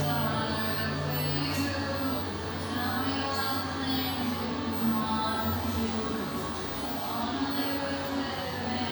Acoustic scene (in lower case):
cafe